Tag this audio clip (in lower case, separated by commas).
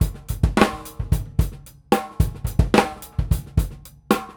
musical instrument, percussion, music, drum kit